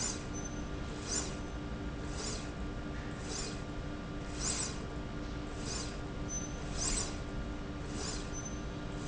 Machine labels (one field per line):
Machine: slide rail